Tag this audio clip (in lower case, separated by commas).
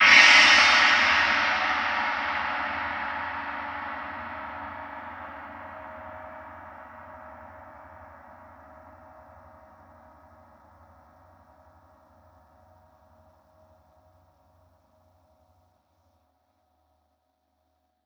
percussion, music, musical instrument, gong